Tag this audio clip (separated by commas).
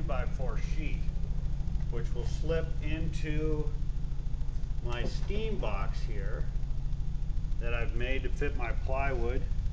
Speech